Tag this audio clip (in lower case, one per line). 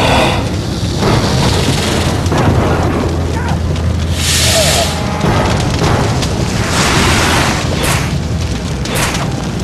music
speech